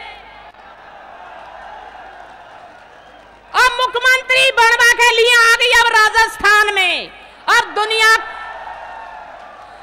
A woman speaking to an audience who applaud